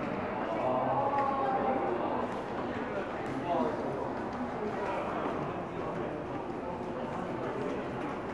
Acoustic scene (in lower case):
crowded indoor space